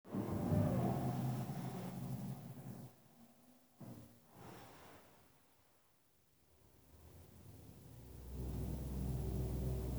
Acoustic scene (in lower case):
elevator